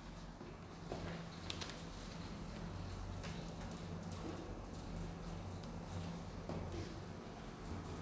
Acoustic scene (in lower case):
elevator